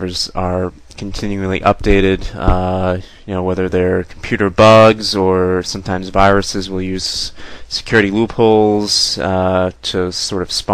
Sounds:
speech

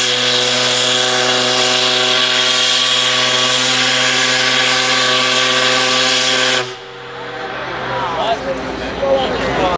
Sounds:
steam whistle
steam
hiss

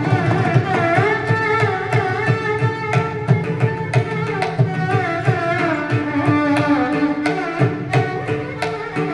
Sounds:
fiddle
musical instrument
music

